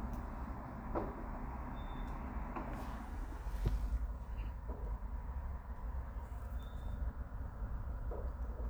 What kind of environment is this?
residential area